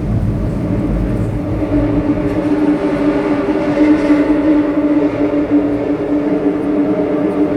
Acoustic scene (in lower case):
subway train